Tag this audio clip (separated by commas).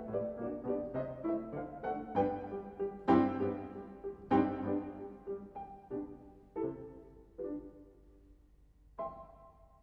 Musical instrument, Music